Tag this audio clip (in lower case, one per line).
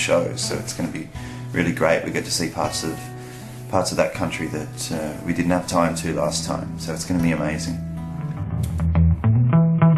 speech
music